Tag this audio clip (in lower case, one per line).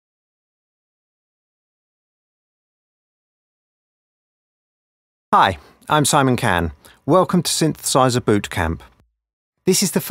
speech